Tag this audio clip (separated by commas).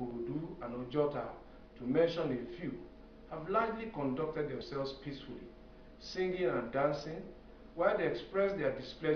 monologue, Speech, Male speech